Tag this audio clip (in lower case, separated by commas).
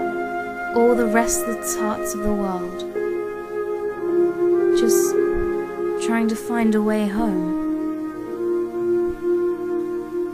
speech, music, woman speaking, monologue